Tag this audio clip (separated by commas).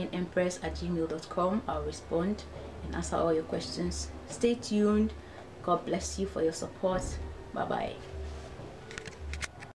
inside a small room, Music, Speech